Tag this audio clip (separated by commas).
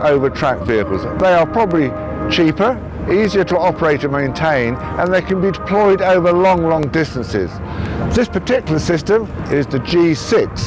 outside, urban or man-made, Music, Speech